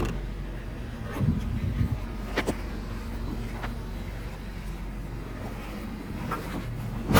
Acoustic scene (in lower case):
residential area